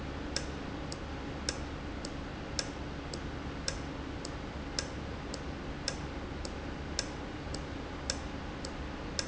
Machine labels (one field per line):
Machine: valve